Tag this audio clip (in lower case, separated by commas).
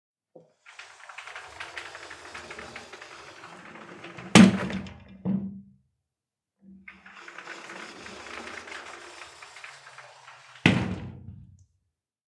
sliding door, home sounds, door